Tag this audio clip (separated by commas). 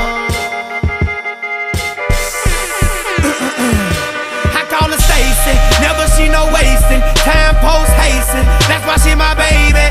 Music